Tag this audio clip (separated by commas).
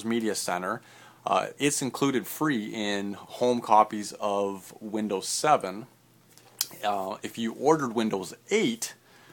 Speech